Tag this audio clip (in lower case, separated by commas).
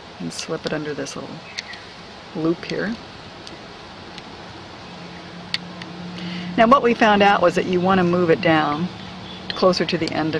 speech